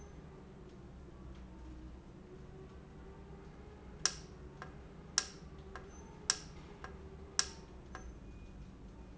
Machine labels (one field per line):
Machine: valve